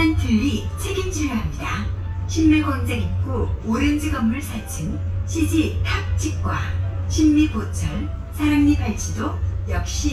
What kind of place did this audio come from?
bus